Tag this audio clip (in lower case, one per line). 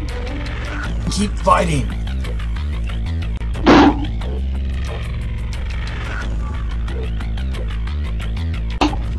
whack